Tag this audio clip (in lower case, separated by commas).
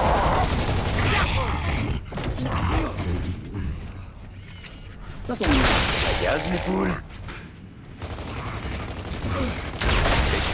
speech